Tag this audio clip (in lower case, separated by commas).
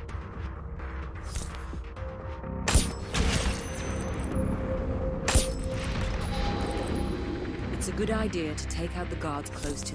music, speech